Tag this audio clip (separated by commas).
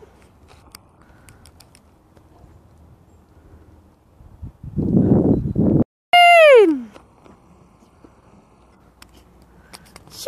Speech